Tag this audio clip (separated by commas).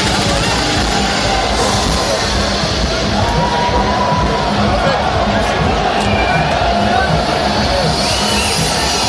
Electronic music, Music, Techno, Speech